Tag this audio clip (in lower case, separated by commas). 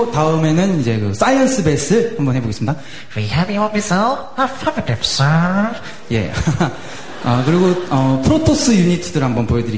speech